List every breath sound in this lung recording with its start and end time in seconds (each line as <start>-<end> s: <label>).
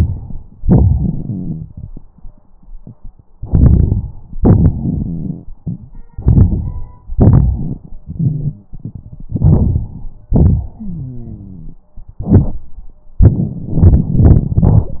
0.67-1.90 s: exhalation
1.28-1.73 s: wheeze
3.43-4.34 s: crackles
3.43-4.36 s: inhalation
4.36-6.05 s: exhalation
5.05-5.39 s: wheeze
6.12-7.13 s: inhalation
7.13-9.31 s: exhalation
8.06-8.70 s: wheeze
9.29-10.28 s: inhalation
10.33-11.84 s: exhalation
10.78-11.77 s: wheeze